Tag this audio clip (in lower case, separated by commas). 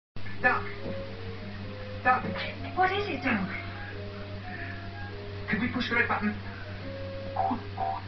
music, speech